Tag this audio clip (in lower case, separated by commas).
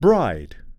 male speech, speech, human voice